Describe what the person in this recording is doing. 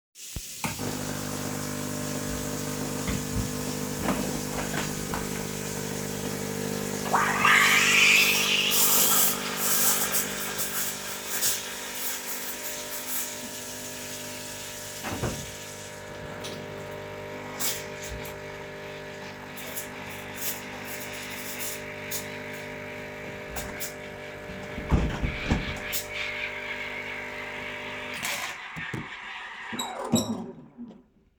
the water is running, i turn on the coffee machine. i open the window and foam the milk. then i turn off the water, hitting a chair. then i close the window and turn off the coffee machine and the steam.